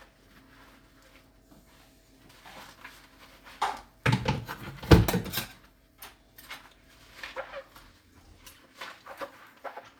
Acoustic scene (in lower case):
kitchen